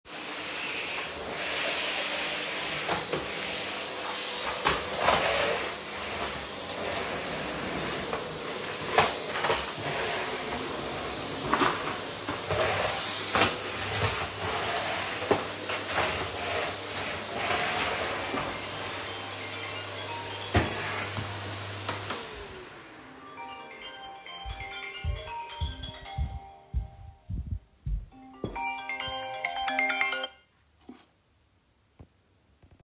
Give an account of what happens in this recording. I was vacuum cleaning when my phone started ringing across the room. I stopped the vacum cleaner walked to my phone and confirmed the call